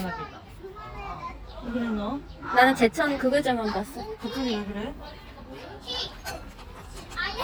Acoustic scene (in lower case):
park